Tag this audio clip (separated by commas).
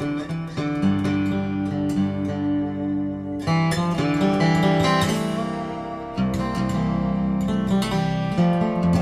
Music, Musical instrument, Strum, Plucked string instrument, Guitar, Acoustic guitar